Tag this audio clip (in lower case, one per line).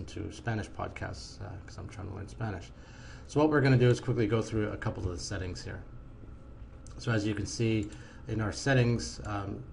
speech